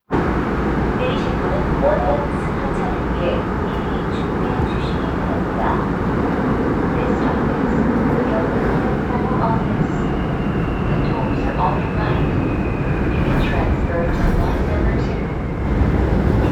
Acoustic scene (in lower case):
subway train